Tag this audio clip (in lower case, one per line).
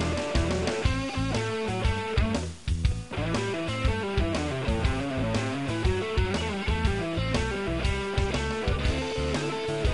playing bass guitar
strum
plucked string instrument
guitar
bass guitar
musical instrument
music